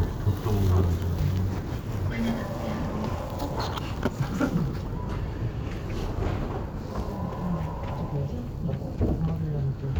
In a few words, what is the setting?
elevator